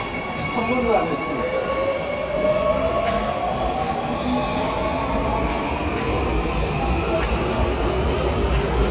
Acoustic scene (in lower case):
subway station